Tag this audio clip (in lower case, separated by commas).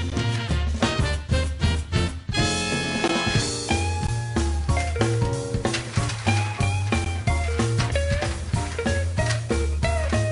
music